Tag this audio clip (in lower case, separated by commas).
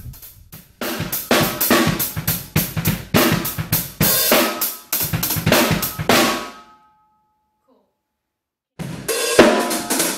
drum, music, musical instrument, hi-hat, cymbal, drum kit, bass drum, snare drum